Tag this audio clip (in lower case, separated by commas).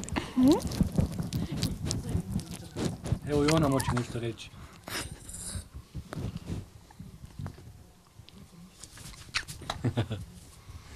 speech